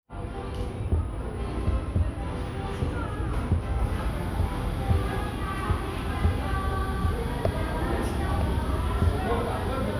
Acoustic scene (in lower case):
cafe